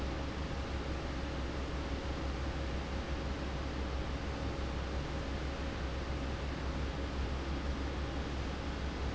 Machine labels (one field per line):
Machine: fan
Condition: abnormal